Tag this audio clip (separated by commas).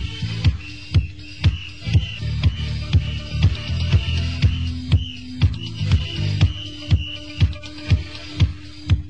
Speech, Music